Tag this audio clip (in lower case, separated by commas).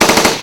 gunfire, explosion